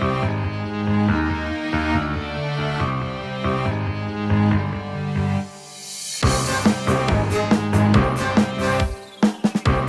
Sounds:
music

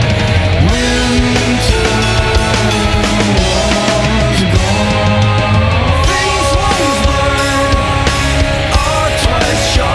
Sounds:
music

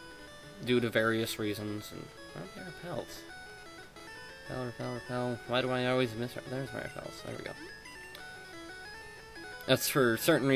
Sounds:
music
speech

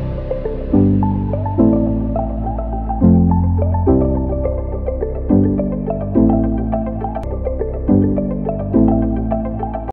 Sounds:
music

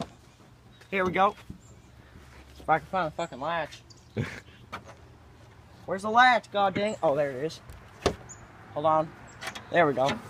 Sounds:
speech

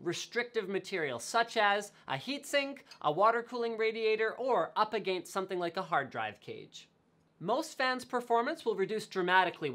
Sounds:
speech

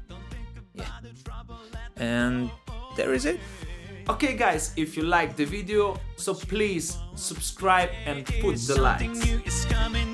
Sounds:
music
speech

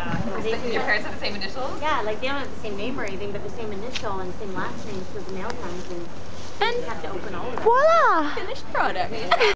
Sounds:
speech

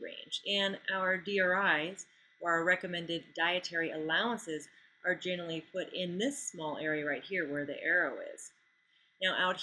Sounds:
speech

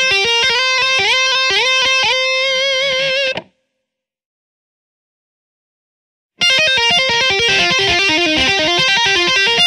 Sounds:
tapping guitar

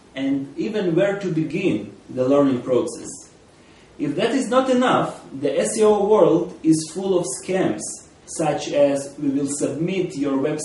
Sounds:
speech

